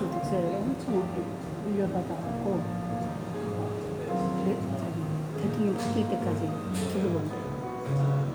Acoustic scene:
cafe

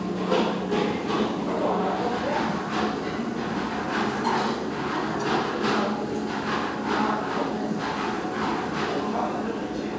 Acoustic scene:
restaurant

